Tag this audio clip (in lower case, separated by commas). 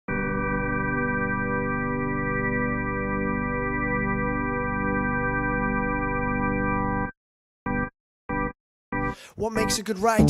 electric piano, music